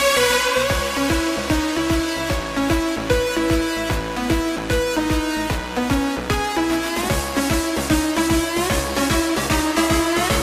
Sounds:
Music

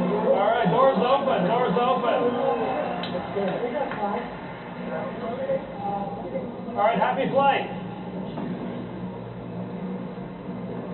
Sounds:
Speech

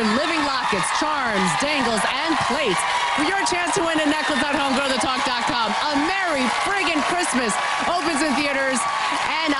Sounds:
Speech

